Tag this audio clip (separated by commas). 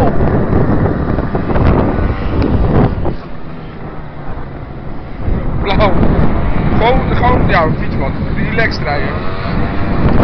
Speech, Vehicle